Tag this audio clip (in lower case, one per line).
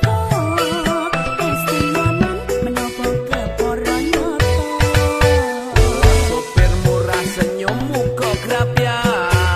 music